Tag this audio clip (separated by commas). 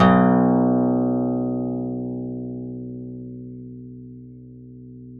Music, Musical instrument, Plucked string instrument, Guitar, Acoustic guitar